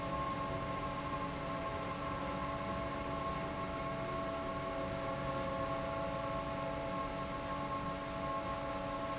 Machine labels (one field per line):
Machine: fan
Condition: normal